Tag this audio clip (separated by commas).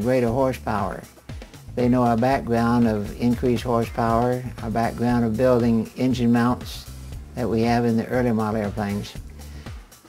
Music, Speech